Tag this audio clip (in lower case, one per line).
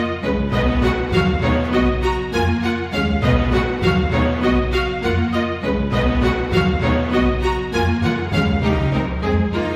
music
musical instrument